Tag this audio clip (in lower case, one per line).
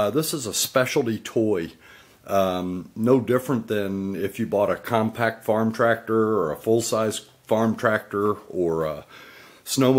speech